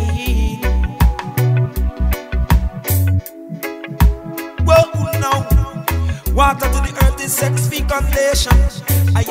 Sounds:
music

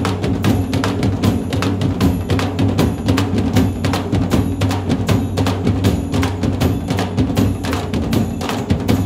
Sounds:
drum
snare drum
percussion

